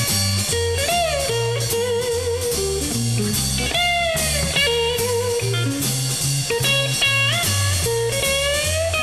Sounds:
plucked string instrument
music
blues
strum
musical instrument
guitar

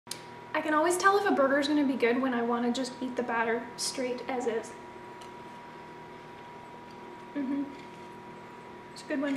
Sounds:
speech

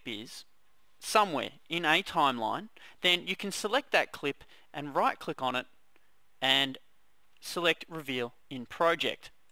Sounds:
speech

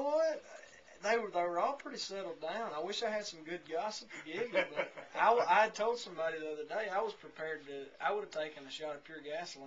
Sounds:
speech

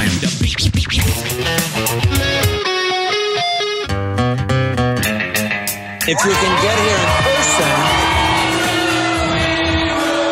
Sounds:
rock and roll
speech
music

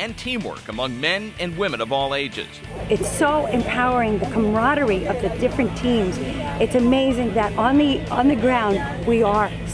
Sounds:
music
speech

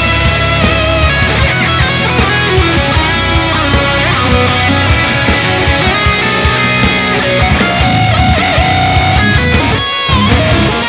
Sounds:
guitar
strum
musical instrument
electric guitar
music

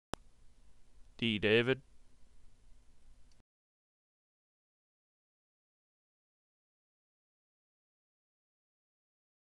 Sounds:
speech

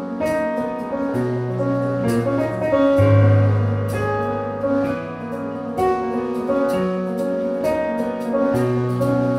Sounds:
jazz
music
drum
musical instrument

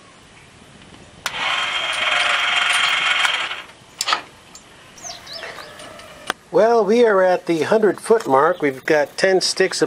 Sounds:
speech

